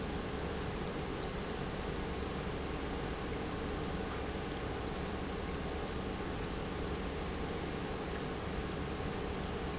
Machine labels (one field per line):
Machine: pump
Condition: normal